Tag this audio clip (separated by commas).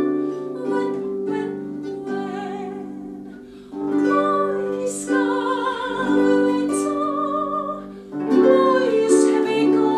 Music